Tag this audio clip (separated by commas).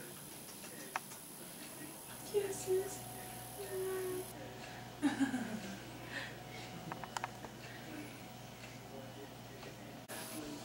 Speech